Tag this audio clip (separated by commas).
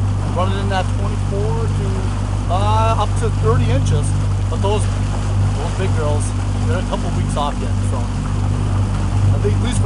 Speech, Vehicle